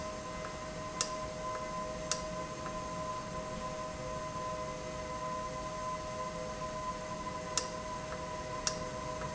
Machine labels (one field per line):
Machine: valve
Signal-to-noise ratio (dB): -6 dB